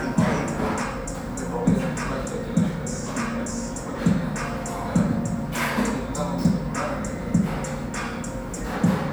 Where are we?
in a restaurant